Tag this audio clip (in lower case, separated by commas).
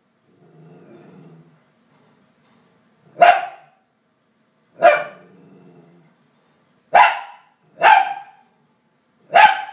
animal, pets, bow-wow, dog, yip